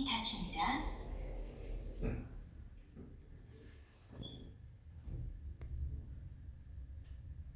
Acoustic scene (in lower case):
elevator